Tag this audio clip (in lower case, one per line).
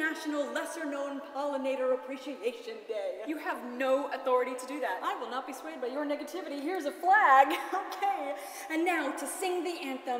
woman speaking
speech